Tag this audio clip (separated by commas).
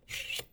home sounds, silverware